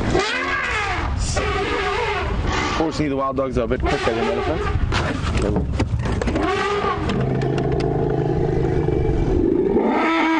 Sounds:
roar
wild animals
outside, rural or natural
animal

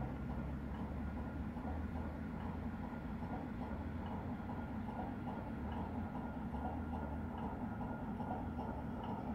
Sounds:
water vehicle
motorboat

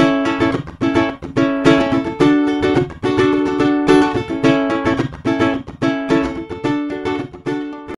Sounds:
playing ukulele

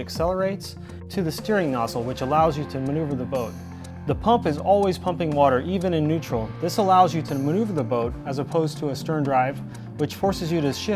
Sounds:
music
speech

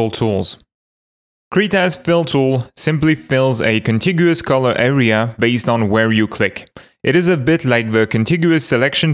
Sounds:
speech

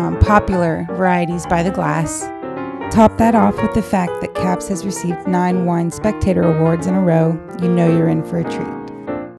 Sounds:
speech
music

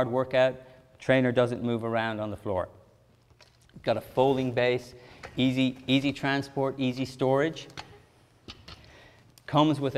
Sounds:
speech

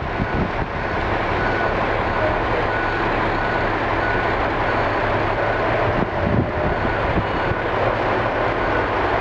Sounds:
vehicle

